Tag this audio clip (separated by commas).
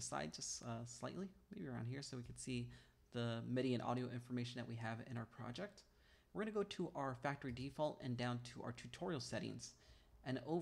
Speech